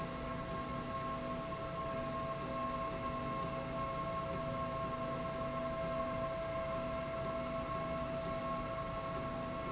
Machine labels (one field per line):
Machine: slide rail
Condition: normal